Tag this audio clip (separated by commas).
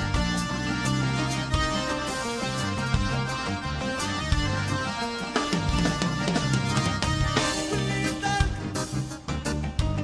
Music